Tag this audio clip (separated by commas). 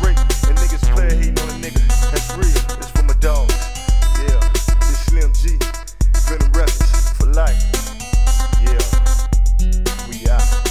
Music, Rapping, Drum machine